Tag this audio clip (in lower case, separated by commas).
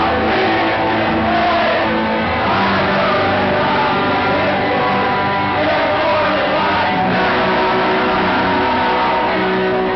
rhythm and blues, music